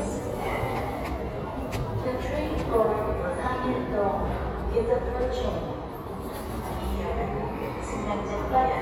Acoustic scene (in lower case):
subway station